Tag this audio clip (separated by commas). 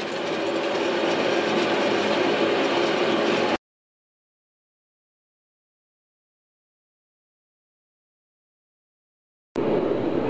forging swords